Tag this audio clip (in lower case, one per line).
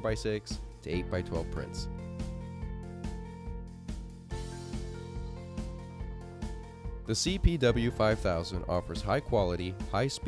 speech
music